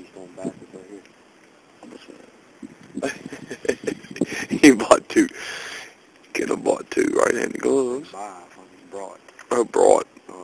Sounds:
speech

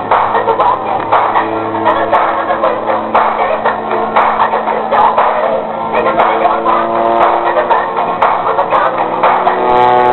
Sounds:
music
vehicle
aircraft

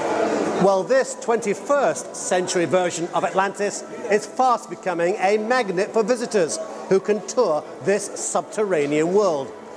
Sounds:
speech

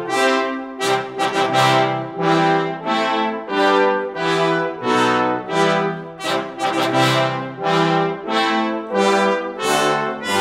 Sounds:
playing trombone
music
brass instrument
trombone

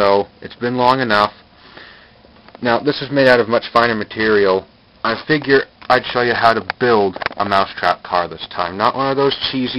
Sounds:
speech

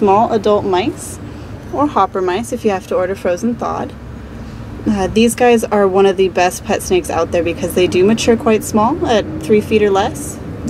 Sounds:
speech

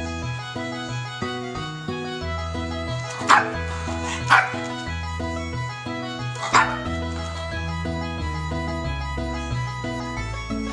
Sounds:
bow-wow
pets
music
dog
animal

